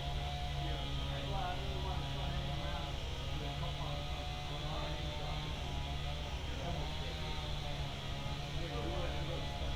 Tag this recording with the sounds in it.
unidentified powered saw, person or small group talking